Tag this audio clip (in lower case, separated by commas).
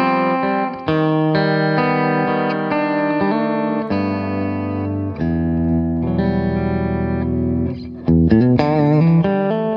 music